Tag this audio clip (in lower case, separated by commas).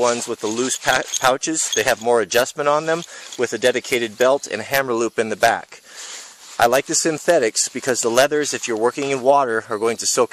speech